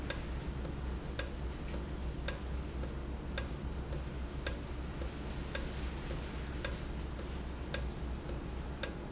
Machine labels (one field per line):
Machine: valve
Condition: normal